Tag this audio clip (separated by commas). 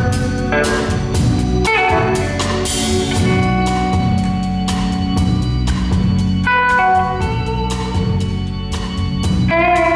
Plucked string instrument, Musical instrument, Music, Guitar